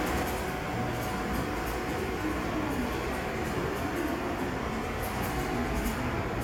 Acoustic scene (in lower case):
subway station